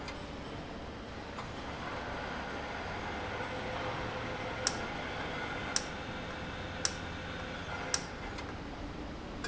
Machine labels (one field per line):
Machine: valve